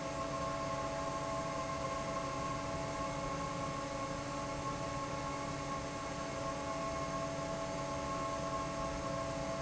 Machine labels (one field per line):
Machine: fan